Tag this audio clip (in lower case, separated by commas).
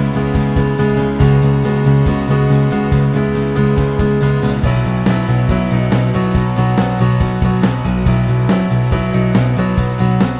music